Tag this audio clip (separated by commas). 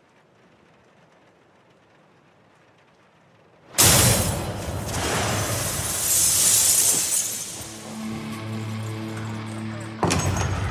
Music